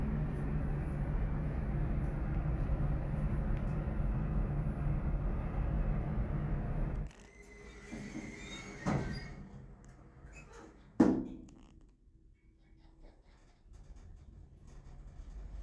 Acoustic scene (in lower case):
elevator